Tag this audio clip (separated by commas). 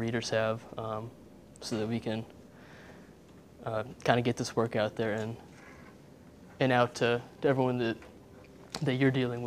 Speech